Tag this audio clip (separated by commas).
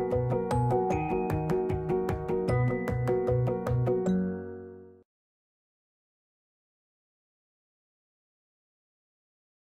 Music